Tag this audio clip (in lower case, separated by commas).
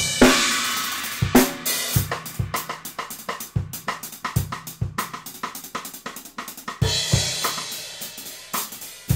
hi-hat, cymbal, playing cymbal